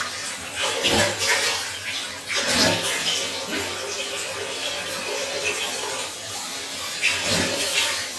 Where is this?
in a restroom